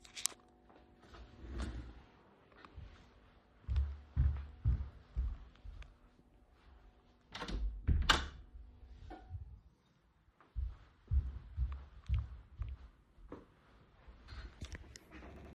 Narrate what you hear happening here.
I walked to shut the door and then walked back to my desk